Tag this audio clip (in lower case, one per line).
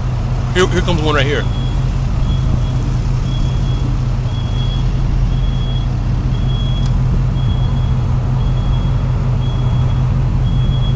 speech